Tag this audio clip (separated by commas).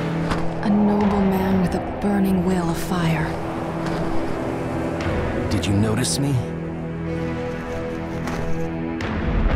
Speech, Music